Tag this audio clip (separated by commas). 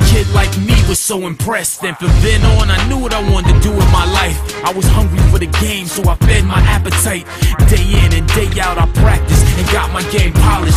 Music